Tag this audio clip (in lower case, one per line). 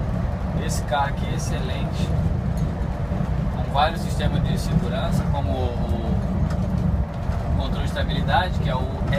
speech